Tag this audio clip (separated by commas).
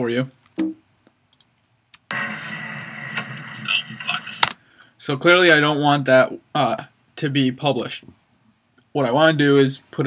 Speech